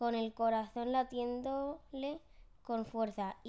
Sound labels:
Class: speech